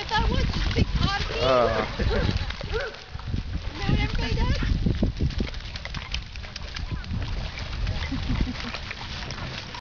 Multiple people talk to each other as a barking sound is heard